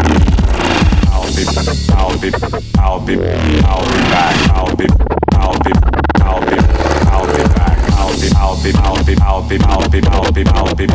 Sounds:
Electronica, Music, Dubstep, Electronic music

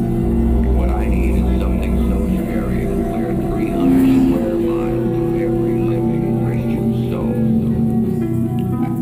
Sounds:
Speech, Music

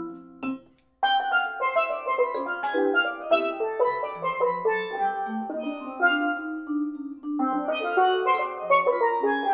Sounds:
Musical instrument, Music, Steelpan, inside a small room, Vibraphone

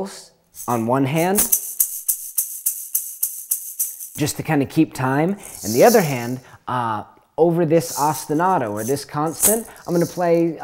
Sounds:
Speech, Music

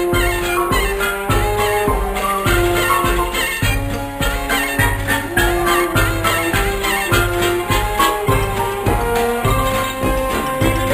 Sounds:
Music

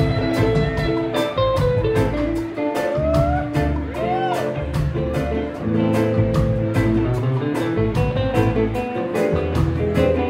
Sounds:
Music

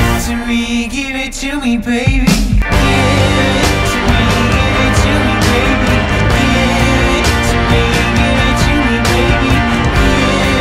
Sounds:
Music

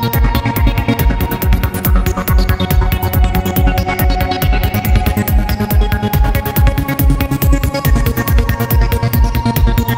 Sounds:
Music, Musical instrument

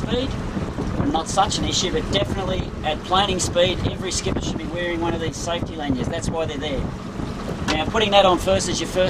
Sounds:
Speech

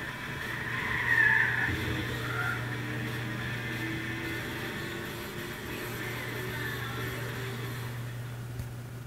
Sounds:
Car, Music, Car passing by, Vehicle

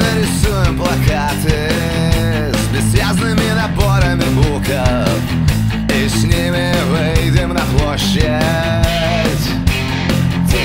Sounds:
Music

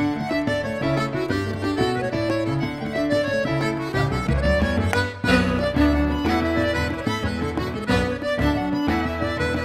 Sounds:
Music

